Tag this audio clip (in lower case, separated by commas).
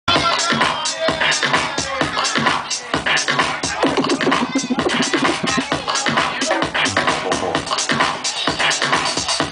disco, music, electronic music